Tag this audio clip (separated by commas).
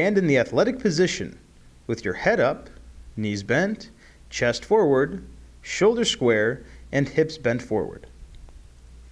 Speech